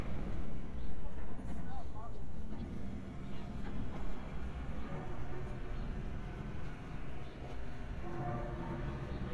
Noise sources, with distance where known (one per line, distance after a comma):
engine of unclear size, far
person or small group talking